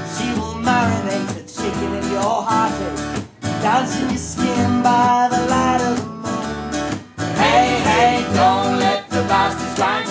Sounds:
music

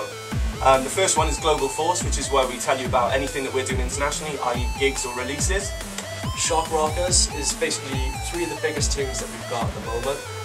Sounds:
music, speech

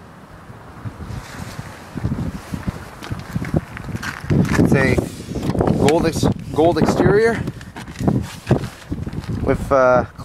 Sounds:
speech

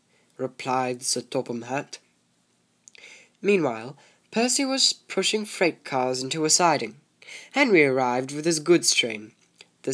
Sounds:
monologue, speech

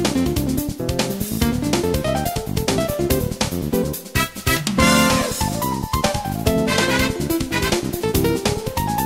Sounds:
music

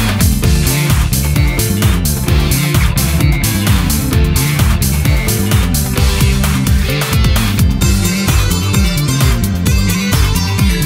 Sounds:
music

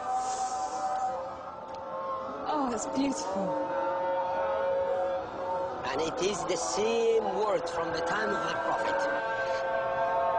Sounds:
speech

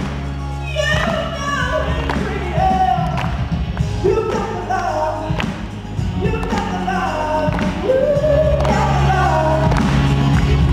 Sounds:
music, male singing

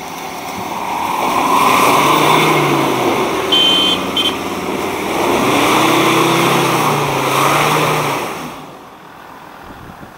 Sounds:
vehicle, car

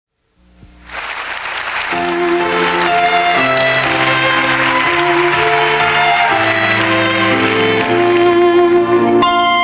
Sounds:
music, bowed string instrument, fiddle

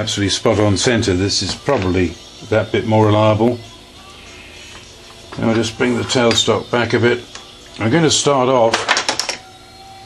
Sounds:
speech, tools

